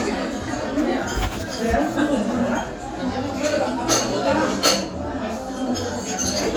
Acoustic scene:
restaurant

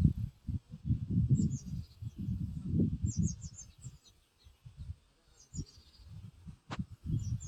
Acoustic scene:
park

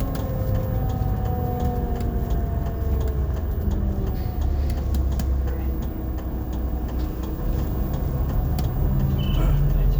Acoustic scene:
bus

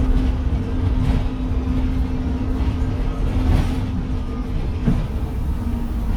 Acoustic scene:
bus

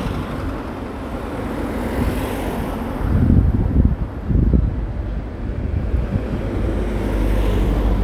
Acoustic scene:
street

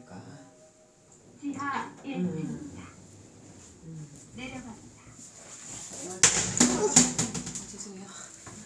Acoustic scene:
elevator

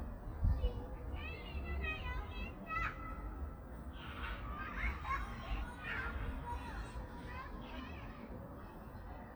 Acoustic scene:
park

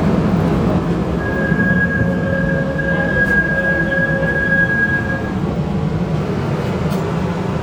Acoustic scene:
subway station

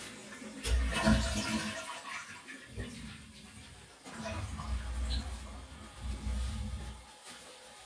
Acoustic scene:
restroom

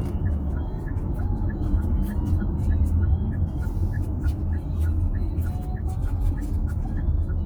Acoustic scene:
car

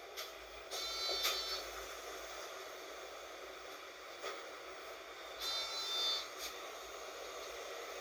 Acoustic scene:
bus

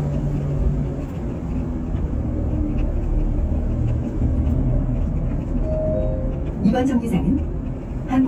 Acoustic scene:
bus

